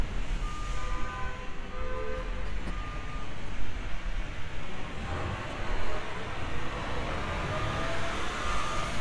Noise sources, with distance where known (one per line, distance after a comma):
engine of unclear size, near
car horn, far